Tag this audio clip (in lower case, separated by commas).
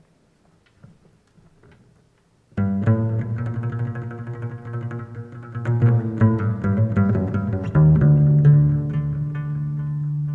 playing double bass